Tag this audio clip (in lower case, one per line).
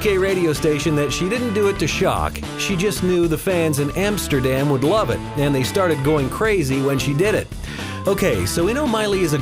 speech
music